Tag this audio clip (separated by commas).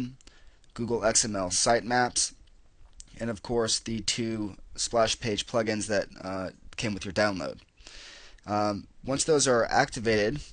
Speech